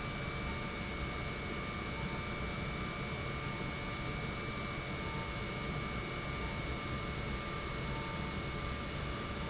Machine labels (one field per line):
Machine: pump